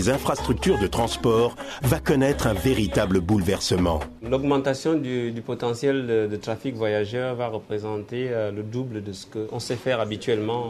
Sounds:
Speech, Music

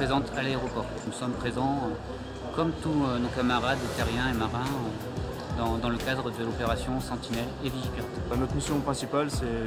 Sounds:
Speech, Music

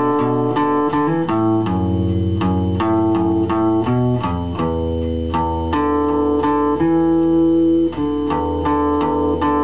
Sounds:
Strum, Musical instrument, Acoustic guitar, Music, Guitar, Plucked string instrument

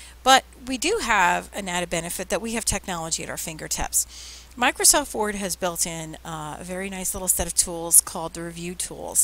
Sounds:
Speech

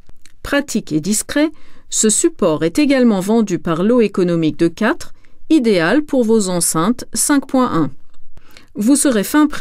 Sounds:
Speech

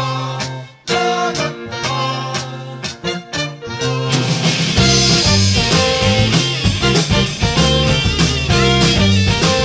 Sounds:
Music, Exciting music

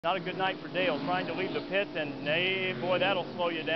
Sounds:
Car passing by

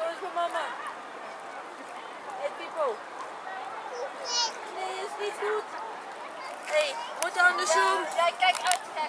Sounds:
Speech

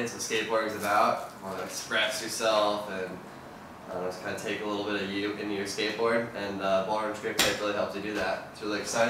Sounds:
Speech

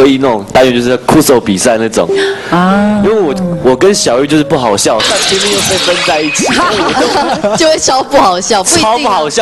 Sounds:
Speech, Music

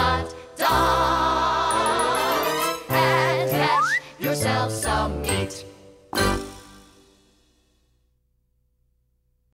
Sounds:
Music

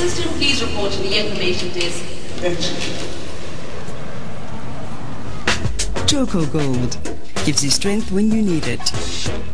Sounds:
Music, Speech

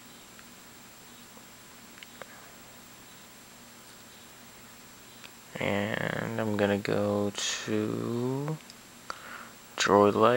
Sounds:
Speech

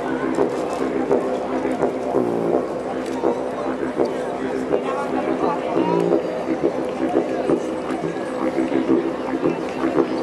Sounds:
Didgeridoo

